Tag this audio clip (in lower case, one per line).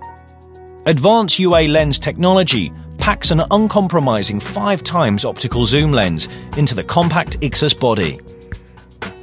music
speech